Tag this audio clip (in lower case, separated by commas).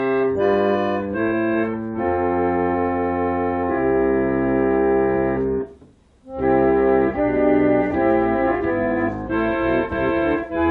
music, piano, musical instrument, playing piano